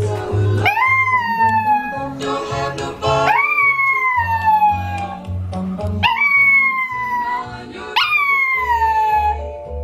Music playing while a dog howls in unison